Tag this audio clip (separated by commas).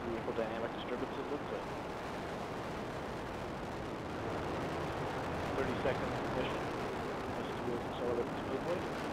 Speech